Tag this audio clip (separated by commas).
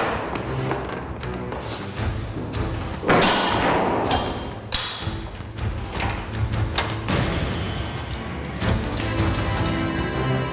Music, inside a large room or hall